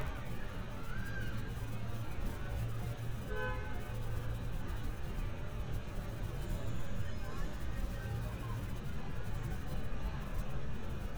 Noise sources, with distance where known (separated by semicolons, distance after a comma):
car horn, near